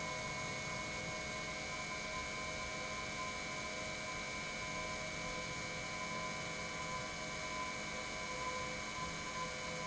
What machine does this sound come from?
pump